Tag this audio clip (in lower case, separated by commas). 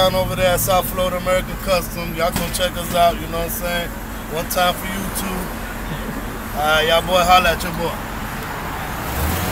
vehicle, car